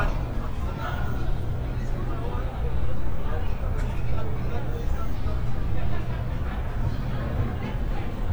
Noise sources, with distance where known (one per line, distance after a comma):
person or small group talking